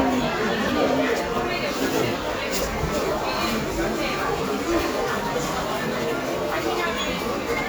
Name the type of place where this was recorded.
crowded indoor space